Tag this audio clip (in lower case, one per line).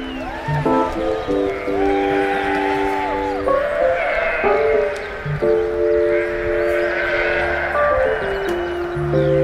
music